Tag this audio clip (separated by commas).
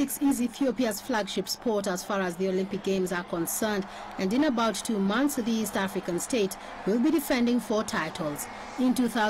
Speech, outside, urban or man-made